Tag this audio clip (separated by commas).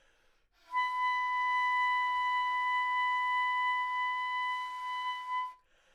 Music, Wind instrument, Musical instrument